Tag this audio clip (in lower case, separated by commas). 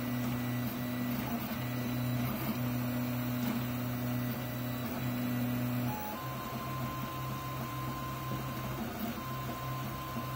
printer printing